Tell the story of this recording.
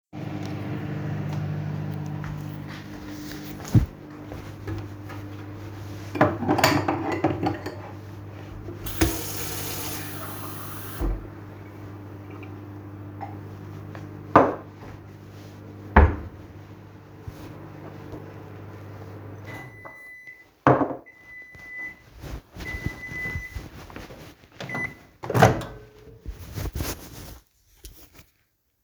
The microwave is already on, in the meantime, I open the wardrobe, grab a glass, close the wardrobe and fill up the glass with water. At some point, the microwave finishes.